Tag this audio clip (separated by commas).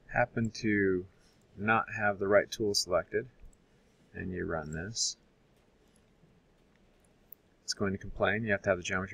Speech